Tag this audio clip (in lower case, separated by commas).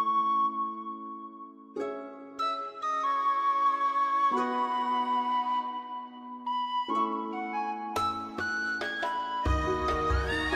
music